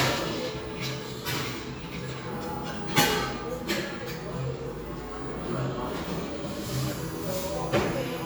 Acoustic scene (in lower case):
cafe